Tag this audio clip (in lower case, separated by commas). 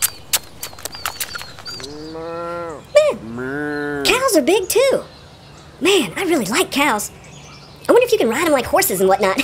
speech